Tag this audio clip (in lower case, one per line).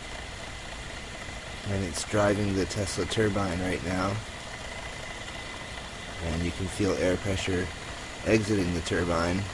speech